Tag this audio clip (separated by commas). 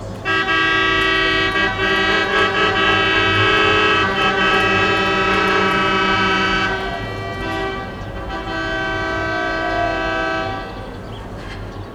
Motor vehicle (road), Truck, Vehicle, Alarm